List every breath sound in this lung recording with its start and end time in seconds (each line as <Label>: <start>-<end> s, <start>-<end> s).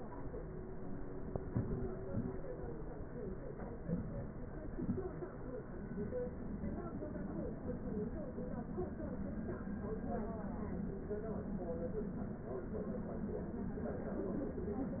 Inhalation: 1.46-2.05 s, 3.86-4.44 s
Exhalation: 2.10-2.49 s, 4.67-5.11 s